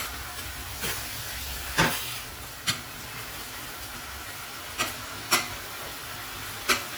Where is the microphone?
in a kitchen